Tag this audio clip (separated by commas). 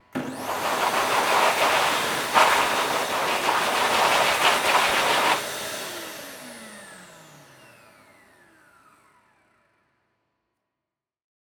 home sounds